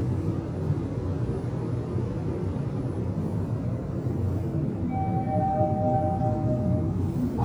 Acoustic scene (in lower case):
elevator